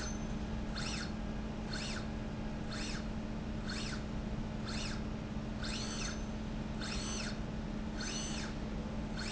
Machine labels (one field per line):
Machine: slide rail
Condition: normal